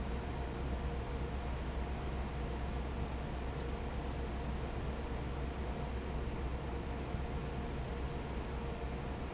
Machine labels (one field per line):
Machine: fan